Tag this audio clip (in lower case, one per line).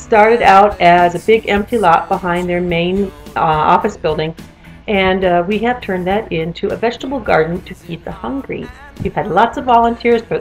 music
speech